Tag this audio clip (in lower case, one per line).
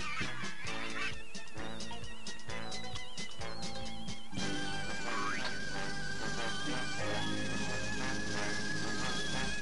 music